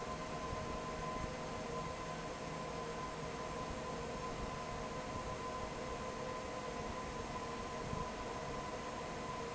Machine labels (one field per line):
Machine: fan